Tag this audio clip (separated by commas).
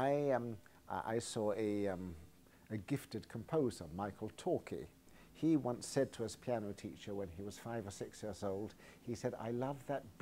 Speech